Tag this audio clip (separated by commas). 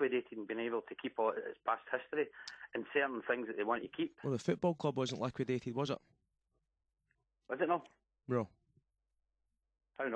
Speech